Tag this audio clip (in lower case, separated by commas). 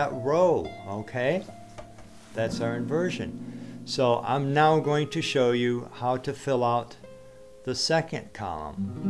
guitar, music, speech